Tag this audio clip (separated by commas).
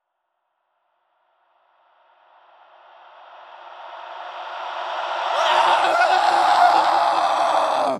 Screaming, Human voice